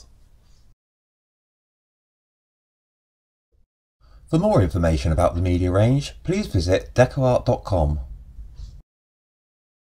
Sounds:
speech

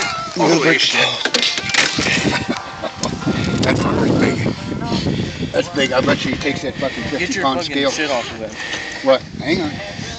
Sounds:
outside, rural or natural, music, speech

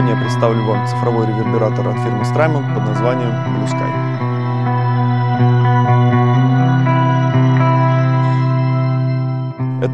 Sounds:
distortion, speech, music

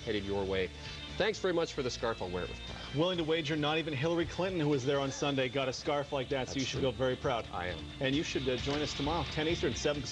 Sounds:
music, speech

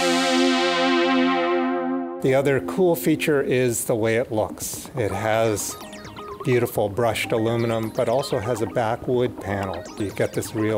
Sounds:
music, speech

